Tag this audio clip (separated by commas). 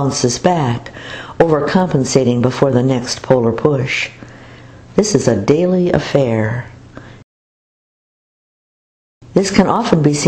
Speech